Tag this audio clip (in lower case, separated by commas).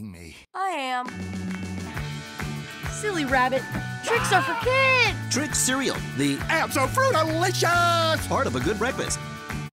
music, speech